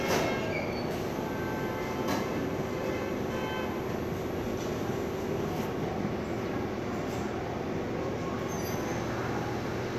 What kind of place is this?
cafe